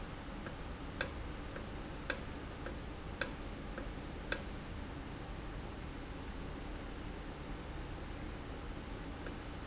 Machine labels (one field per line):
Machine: valve